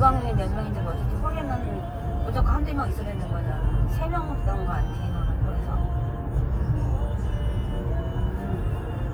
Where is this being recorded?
in a car